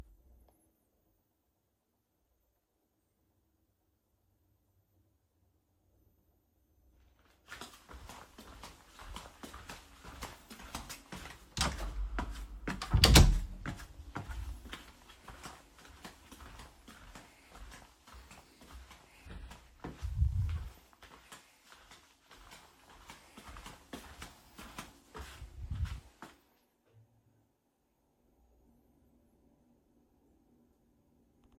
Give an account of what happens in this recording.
I was holding the phone and walking. While I was still moving, I opened and closed the door, so that the sounds overlap.